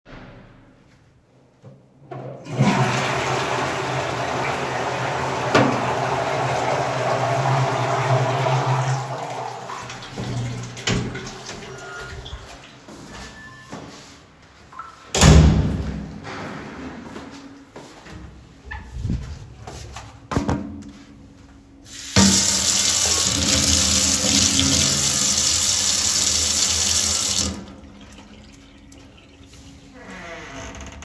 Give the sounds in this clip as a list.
toilet flushing, footsteps, phone ringing, door, running water